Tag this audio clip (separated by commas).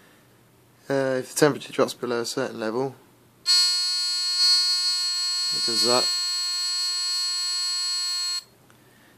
inside a small room, Speech